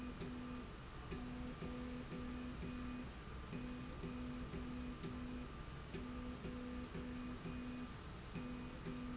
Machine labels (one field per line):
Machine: slide rail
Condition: normal